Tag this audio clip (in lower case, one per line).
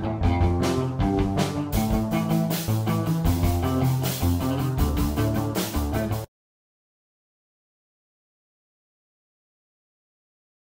music